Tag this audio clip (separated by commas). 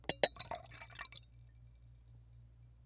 Liquid